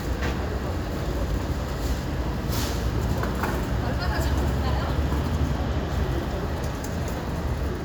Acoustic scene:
residential area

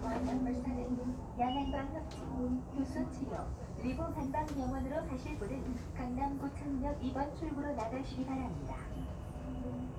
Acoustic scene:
subway train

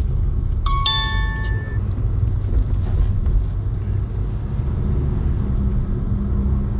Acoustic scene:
car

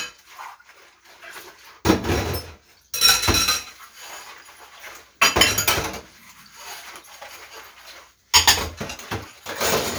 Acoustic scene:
kitchen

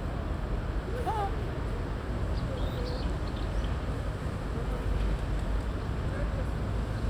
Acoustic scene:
park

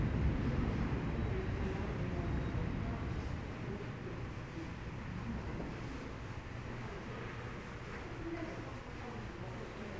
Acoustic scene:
subway station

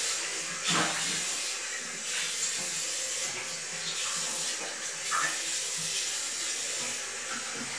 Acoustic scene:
restroom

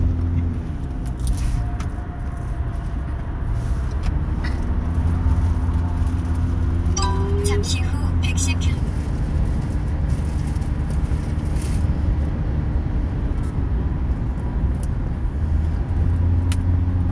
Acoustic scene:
car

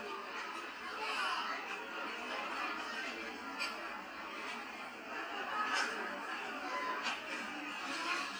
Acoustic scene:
restaurant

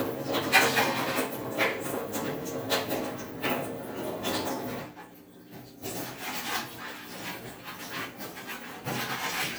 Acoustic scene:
kitchen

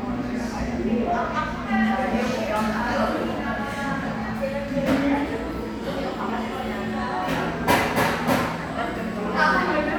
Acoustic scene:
crowded indoor space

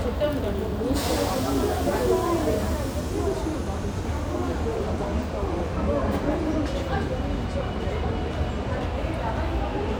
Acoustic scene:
subway station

